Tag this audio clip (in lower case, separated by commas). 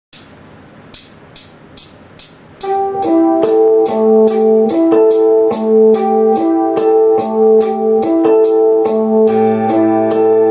musical instrument, inside a small room, plucked string instrument, music, guitar